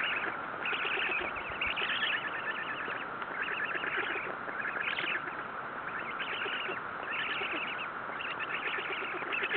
Baby birds chirp outside